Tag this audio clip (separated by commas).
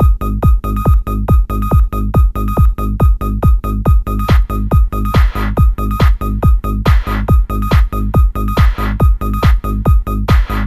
Music